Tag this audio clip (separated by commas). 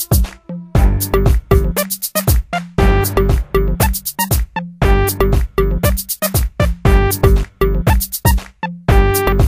Music